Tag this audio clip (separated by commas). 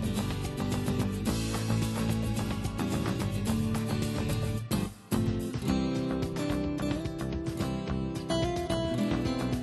Music